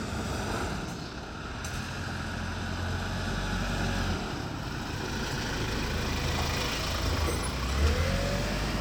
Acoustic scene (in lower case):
residential area